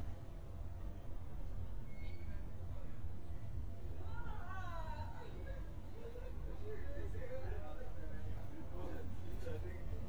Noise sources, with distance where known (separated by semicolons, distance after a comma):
unidentified human voice, far